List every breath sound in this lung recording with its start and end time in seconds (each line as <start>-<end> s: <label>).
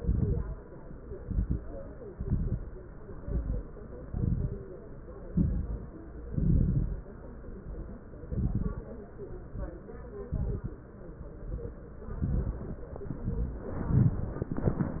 0.00-0.55 s: exhalation
0.00-0.55 s: crackles
1.03-1.57 s: inhalation
1.03-1.57 s: crackles
2.11-2.66 s: exhalation
2.11-2.66 s: crackles
3.10-3.65 s: inhalation
3.10-3.65 s: crackles
4.08-4.63 s: exhalation
4.08-4.63 s: crackles
5.28-5.95 s: inhalation
5.28-5.95 s: crackles
6.29-7.10 s: exhalation
6.29-7.10 s: crackles
8.17-8.91 s: inhalation
8.17-8.91 s: crackles
9.31-9.90 s: exhalation
9.31-9.90 s: crackles
10.26-10.85 s: inhalation
10.26-10.85 s: crackles
11.33-11.91 s: exhalation
11.33-11.91 s: crackles
12.16-12.90 s: inhalation
12.16-12.90 s: crackles
13.07-13.66 s: exhalation
13.07-13.66 s: crackles
13.79-14.39 s: inhalation
13.79-14.39 s: crackles